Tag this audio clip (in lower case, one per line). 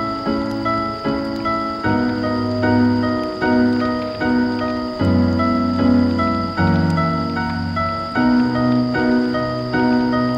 music